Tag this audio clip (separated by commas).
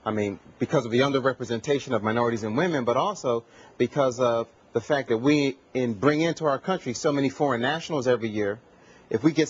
Speech